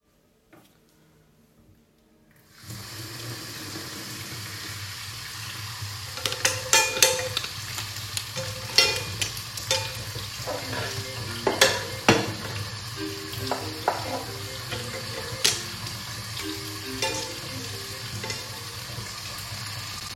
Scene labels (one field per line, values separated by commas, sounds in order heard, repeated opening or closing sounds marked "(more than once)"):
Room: kitchen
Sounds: running water, cutlery and dishes, phone ringing